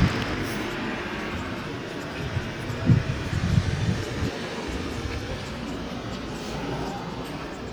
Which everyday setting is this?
street